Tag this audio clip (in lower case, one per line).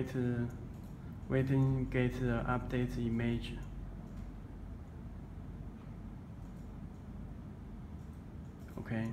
speech